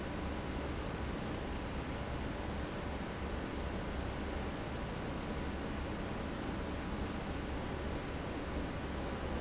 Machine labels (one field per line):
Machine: fan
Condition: abnormal